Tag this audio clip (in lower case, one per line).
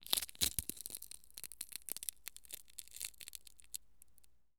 crushing